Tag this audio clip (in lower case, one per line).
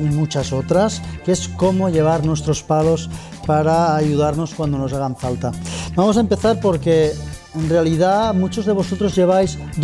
inside a large room or hall
music
speech